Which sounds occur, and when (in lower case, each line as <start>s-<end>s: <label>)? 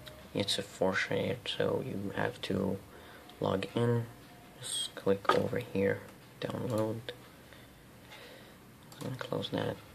0.0s-0.1s: clicking
0.0s-9.9s: background noise
0.3s-1.3s: man speaking
1.5s-2.8s: man speaking
2.9s-3.3s: breathing
3.2s-3.3s: clicking
3.3s-4.1s: man speaking
4.5s-6.1s: man speaking
5.2s-5.4s: generic impact sounds
6.0s-6.2s: generic impact sounds
6.4s-7.2s: man speaking
6.7s-6.8s: clicking
7.4s-7.7s: generic impact sounds
8.1s-8.5s: breathing
8.9s-9.1s: clicking
8.9s-9.8s: man speaking